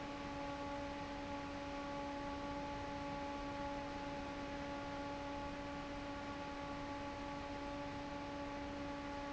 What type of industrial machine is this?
fan